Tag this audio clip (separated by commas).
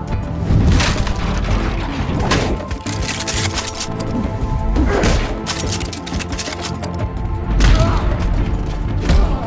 Fusillade